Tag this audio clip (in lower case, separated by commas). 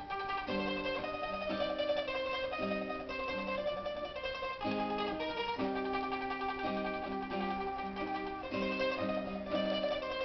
mandolin, guitar, zither, plucked string instrument, musical instrument, music